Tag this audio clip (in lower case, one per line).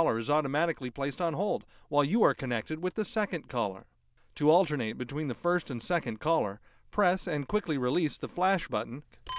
speech